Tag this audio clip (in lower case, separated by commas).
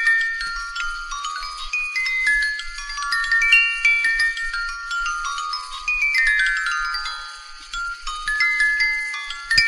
chime